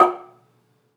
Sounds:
Percussion, xylophone, Music, Musical instrument, Mallet percussion

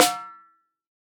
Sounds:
Musical instrument, Snare drum, Percussion, Music, Drum

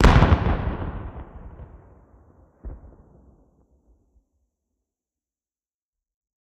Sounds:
Explosion, Boom

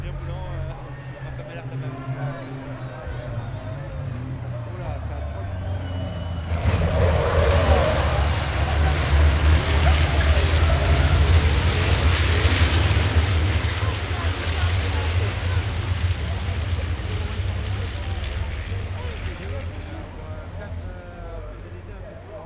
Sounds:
Motor vehicle (road), Truck, Vehicle

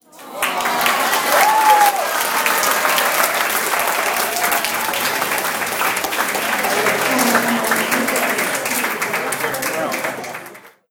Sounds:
Human group actions, Cheering, Applause, Crowd

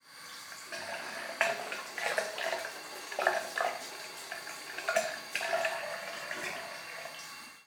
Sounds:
Domestic sounds, faucet, Water

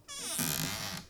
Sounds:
Cupboard open or close, Door, Squeak, Domestic sounds

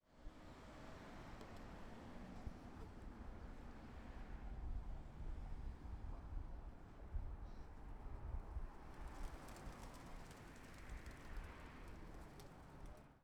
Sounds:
Animal, Bird, Wild animals

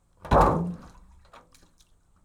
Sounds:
Liquid

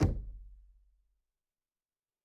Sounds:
Knock, Door, home sounds

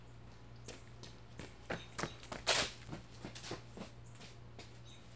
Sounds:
Run

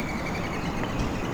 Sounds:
Bird, Animal, Wild animals

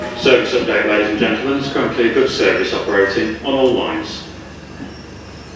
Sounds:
Vehicle, underground, Rail transport, Human voice

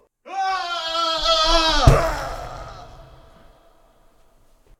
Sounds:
Screaming, Human voice

